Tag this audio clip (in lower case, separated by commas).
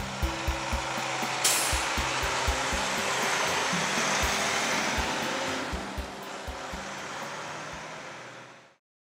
music, outside, urban or man-made, truck, vehicle